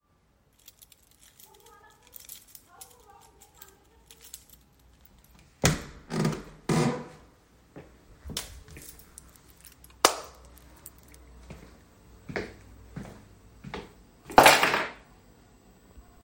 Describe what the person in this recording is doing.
I picked up my keychain, opened the door and turned the light on then walked in and tossed the keychain on the table.